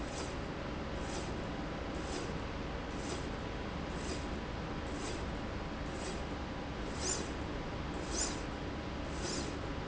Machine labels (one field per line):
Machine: slide rail